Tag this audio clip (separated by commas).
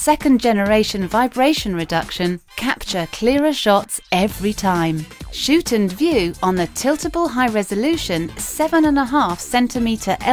Music, Speech